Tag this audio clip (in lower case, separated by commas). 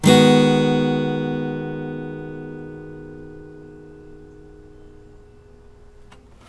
plucked string instrument, guitar, music, musical instrument, acoustic guitar